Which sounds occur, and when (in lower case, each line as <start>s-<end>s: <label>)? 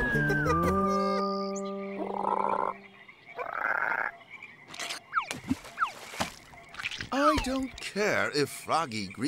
0.0s-0.8s: laughter
0.0s-3.1s: music
0.0s-9.2s: insect
1.9s-2.7s: frog
3.3s-4.1s: frog
4.6s-5.0s: generic impact sounds
5.1s-5.6s: sound effect
5.3s-6.4s: generic impact sounds
5.7s-6.0s: sound effect
6.7s-7.1s: generic impact sounds
7.1s-7.6s: sound effect
7.1s-7.7s: male speech
7.3s-7.8s: generic impact sounds
7.8s-9.2s: male speech